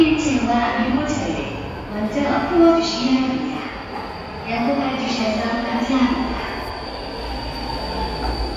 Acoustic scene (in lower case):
subway station